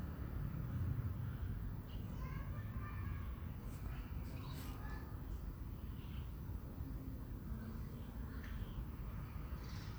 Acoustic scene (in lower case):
residential area